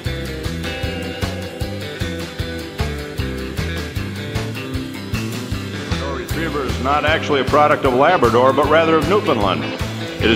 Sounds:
music, speech

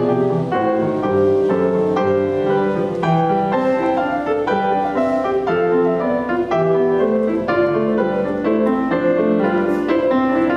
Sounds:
musical instrument, keyboard (musical), piano, music

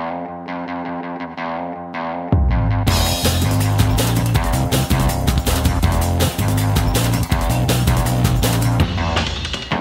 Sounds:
music

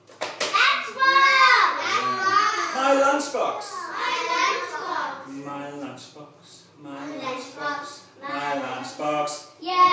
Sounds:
inside a small room, child speech, speech

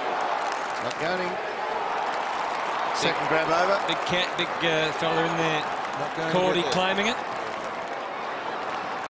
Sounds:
speech

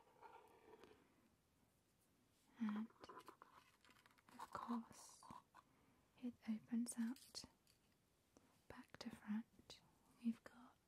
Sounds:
inside a small room, speech

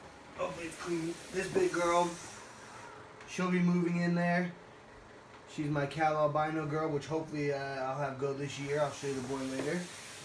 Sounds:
speech, inside a small room

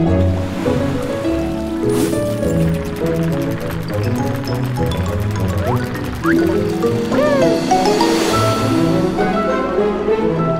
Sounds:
music, gurgling

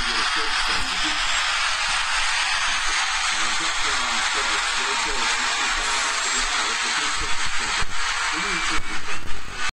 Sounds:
speech

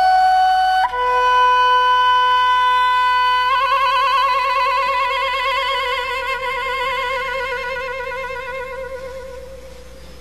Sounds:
music, flute, playing flute

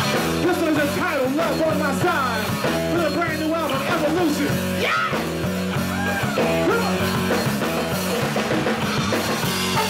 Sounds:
music, jazz

